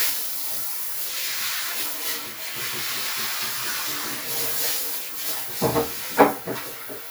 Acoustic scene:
restroom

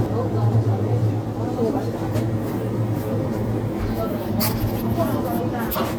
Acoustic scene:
crowded indoor space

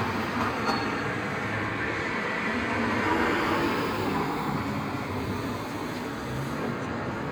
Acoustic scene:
street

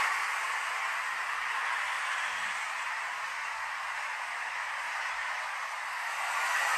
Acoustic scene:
street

